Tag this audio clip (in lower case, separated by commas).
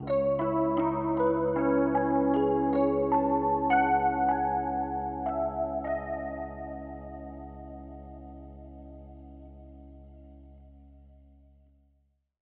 music, piano, musical instrument, keyboard (musical)